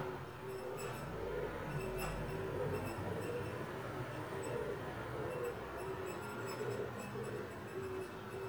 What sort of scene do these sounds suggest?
residential area